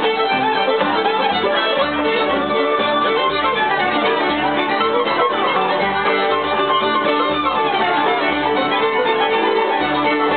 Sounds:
fiddle, Bowed string instrument, Pizzicato

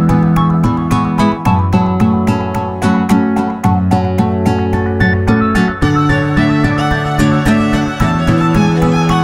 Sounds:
Electronica, Music

